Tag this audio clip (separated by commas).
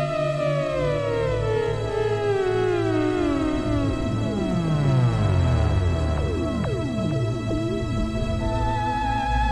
playing theremin